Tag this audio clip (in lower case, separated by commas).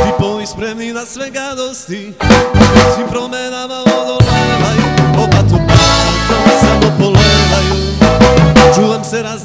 musical instrument, music, drum, drum kit, bass drum